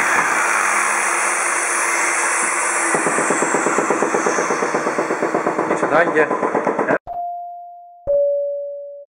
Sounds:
sawing
wood

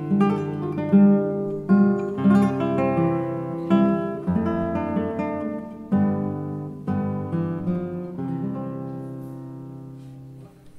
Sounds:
acoustic guitar
plucked string instrument
strum
musical instrument
guitar
music

